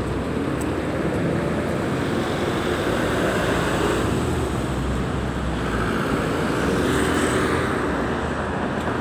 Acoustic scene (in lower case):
street